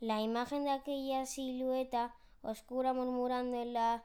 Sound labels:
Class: speech